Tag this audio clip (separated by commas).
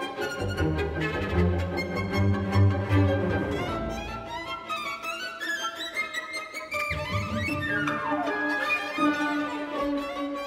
Music